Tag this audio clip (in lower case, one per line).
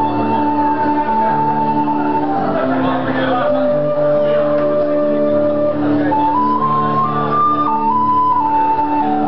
bowed string instrument
inside a large room or hall
musical instrument
music
speech